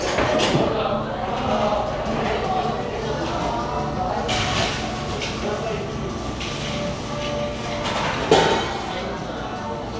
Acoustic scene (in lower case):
cafe